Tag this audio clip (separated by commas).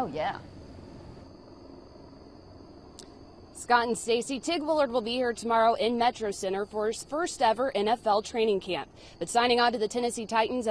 Speech